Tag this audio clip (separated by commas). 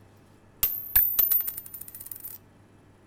Domestic sounds, Coin (dropping)